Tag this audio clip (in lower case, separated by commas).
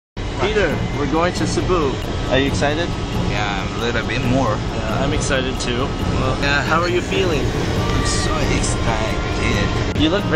speech, inside a large room or hall, music